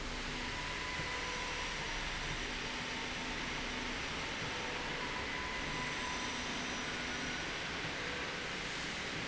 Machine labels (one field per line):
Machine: slide rail